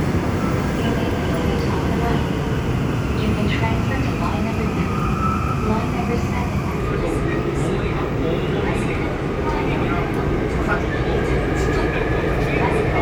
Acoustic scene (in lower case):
subway train